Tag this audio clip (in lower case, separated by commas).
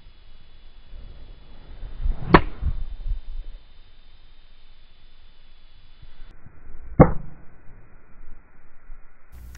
golf driving